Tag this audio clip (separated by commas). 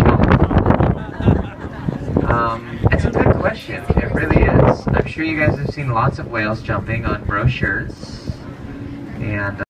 Vehicle, Speech